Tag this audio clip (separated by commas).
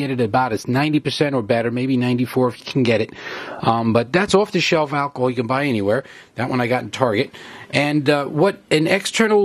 Speech